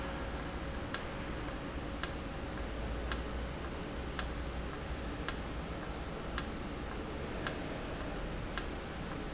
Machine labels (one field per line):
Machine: valve